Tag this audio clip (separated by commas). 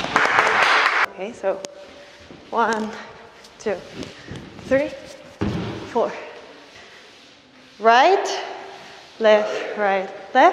playing squash